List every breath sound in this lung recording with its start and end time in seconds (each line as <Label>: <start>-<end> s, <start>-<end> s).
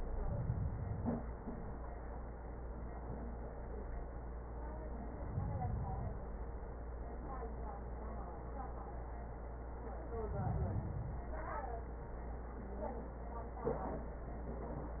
Inhalation: 0.00-1.32 s, 4.97-6.30 s, 10.10-11.35 s